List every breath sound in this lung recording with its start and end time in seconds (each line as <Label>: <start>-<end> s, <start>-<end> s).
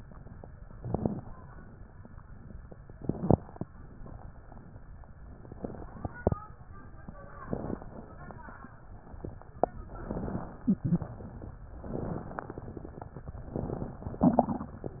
Inhalation: 0.70-1.37 s, 2.92-3.59 s, 7.48-8.14 s, 9.98-10.74 s, 11.80-12.56 s
Exhalation: 10.83-11.59 s
Crackles: 0.70-1.37 s, 2.92-3.59 s, 7.48-8.14 s, 9.98-10.74 s, 11.80-12.56 s